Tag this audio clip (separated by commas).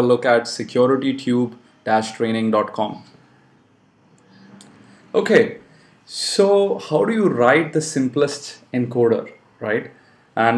Speech